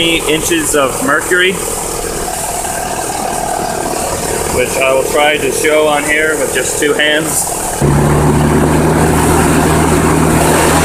An engine is idling and a man is speaking over it